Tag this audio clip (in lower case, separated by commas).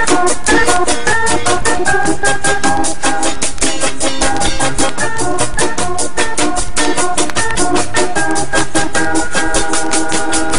music